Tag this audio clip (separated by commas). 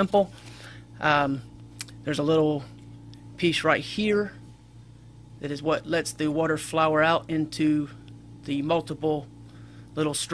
Speech